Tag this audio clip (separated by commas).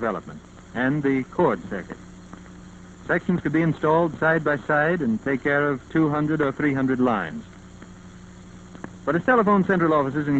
Speech